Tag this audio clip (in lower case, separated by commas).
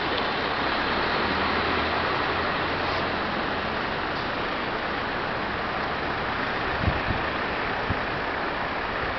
wind noise (microphone), wind